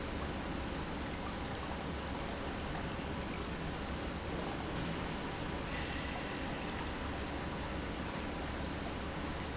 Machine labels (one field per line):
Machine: pump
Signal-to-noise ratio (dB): -6 dB